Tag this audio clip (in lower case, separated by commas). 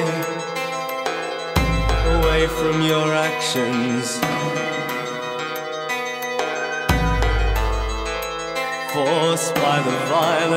music